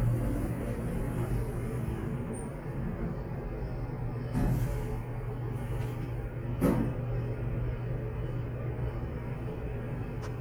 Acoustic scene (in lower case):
elevator